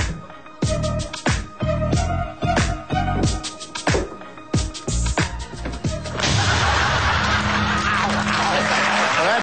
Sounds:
speech, music

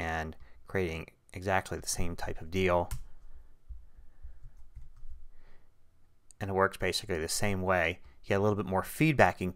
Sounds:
clicking, speech

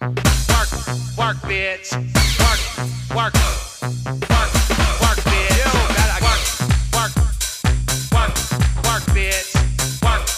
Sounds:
music

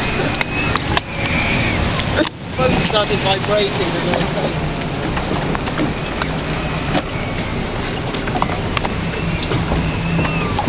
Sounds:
gurgling, ship, speech

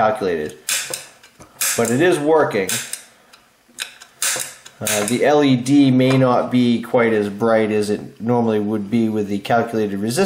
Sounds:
speech, inside a small room

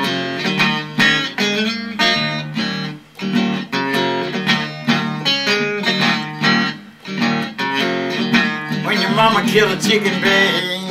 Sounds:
music

